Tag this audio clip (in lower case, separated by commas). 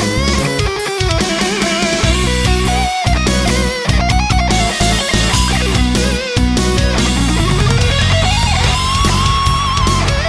music